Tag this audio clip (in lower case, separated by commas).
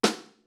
percussion, snare drum, drum, music, musical instrument